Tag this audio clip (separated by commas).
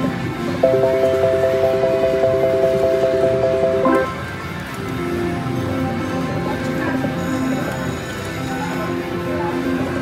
slot machine